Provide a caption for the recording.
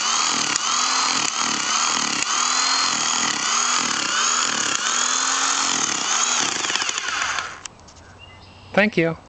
A power tool is being used an man speaks after it is done being used